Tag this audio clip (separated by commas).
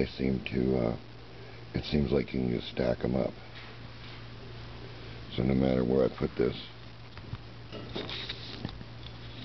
inside a small room, Speech